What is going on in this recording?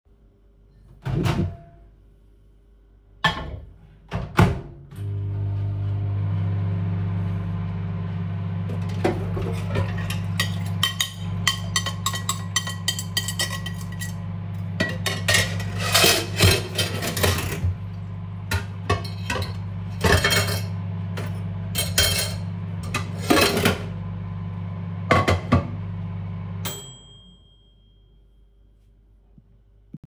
I put something in microwave then did some noise with dishes